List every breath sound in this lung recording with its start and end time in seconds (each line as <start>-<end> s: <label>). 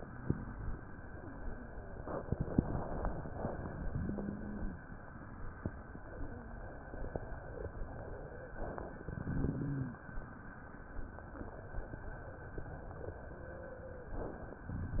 3.79-4.86 s: rhonchi
9.20-10.08 s: rhonchi